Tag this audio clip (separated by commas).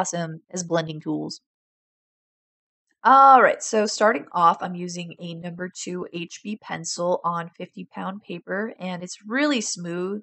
Speech